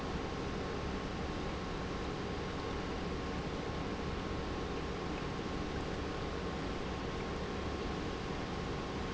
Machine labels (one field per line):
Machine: pump